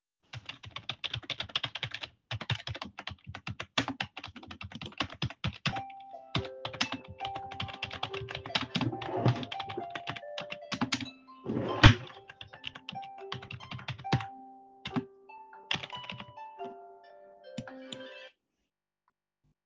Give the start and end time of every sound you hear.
0.1s-18.0s: keyboard typing
5.5s-18.4s: phone ringing
8.6s-9.7s: wardrobe or drawer
11.3s-12.2s: wardrobe or drawer

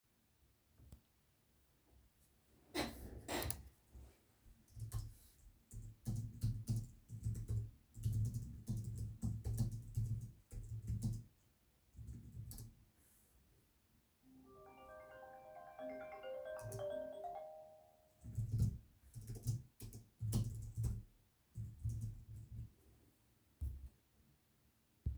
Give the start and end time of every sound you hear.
4.6s-13.0s: keyboard typing
14.2s-18.1s: phone ringing
16.5s-17.2s: keyboard typing
18.4s-22.6s: keyboard typing

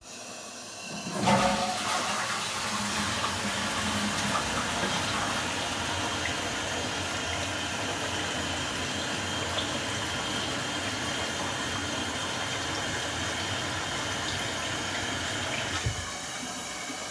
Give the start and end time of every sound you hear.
1.2s-6.8s: toilet flushing
5.6s-16.1s: running water

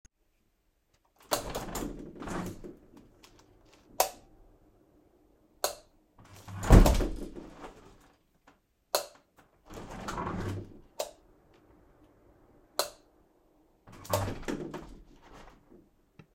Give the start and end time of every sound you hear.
1.3s-2.8s: window
1.3s-1.4s: light switch
4.0s-4.1s: light switch
5.6s-5.8s: light switch
6.2s-8.1s: window
8.9s-9.2s: light switch
9.7s-10.7s: window
11.0s-11.3s: light switch
12.7s-13.0s: light switch
13.8s-15.9s: window
14.0s-14.4s: light switch

